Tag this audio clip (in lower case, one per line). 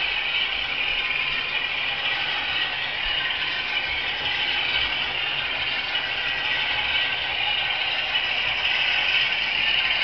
sound effect